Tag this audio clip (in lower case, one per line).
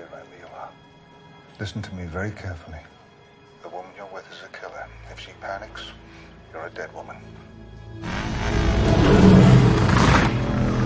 music
speech